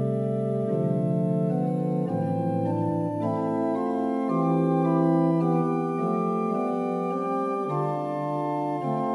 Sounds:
music

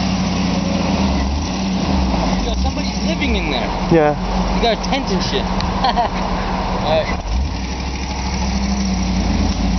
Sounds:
speech

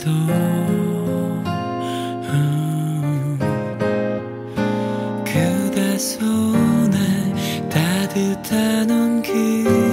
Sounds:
music

